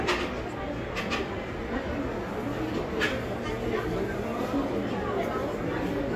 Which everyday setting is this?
cafe